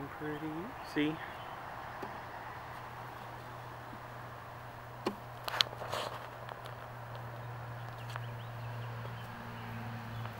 Man talking background noise of swarm